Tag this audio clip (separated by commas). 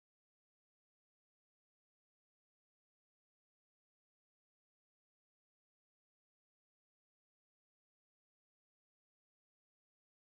extending ladders